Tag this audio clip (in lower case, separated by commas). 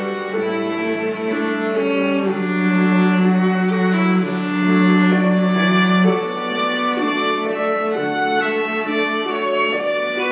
cello, violin, bowed string instrument